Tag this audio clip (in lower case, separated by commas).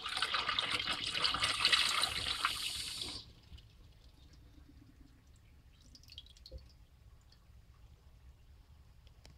toilet flush